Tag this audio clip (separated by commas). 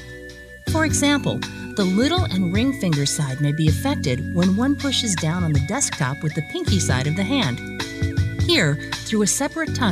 Music, Speech